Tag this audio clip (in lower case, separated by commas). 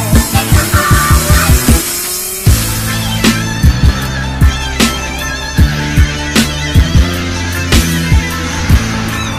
vehicle, motorcycle